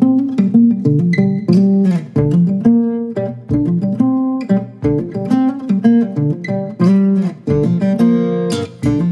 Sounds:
inside a small room
music
musical instrument
plucked string instrument
blues
guitar
acoustic guitar

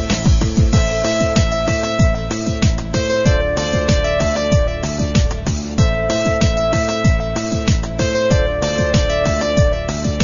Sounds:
music

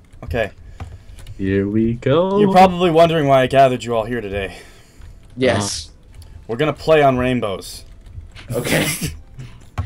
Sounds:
speech

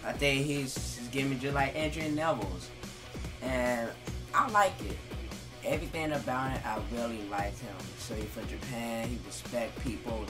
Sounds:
speech
music

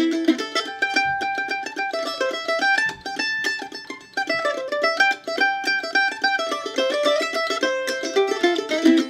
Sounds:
pizzicato
zither

